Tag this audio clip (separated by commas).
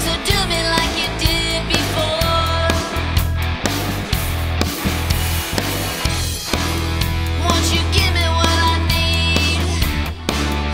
Dance music, Jazz, Pop music, Music